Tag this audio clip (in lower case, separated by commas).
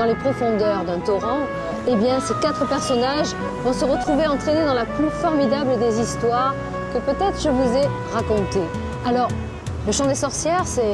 music, speech